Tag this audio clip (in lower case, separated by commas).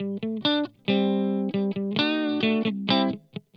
music, electric guitar, musical instrument, guitar, plucked string instrument